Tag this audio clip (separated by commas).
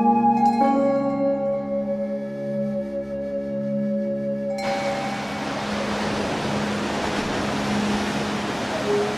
Music